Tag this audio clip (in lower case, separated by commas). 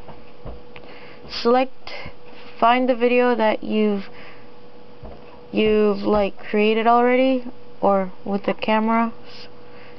speech, inside a small room